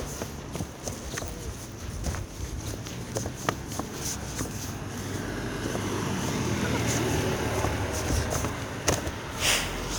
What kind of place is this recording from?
residential area